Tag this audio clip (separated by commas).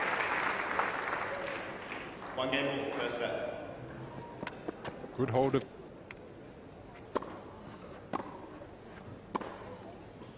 Speech